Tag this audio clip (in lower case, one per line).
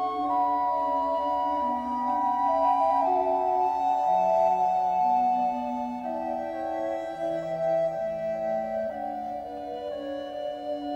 music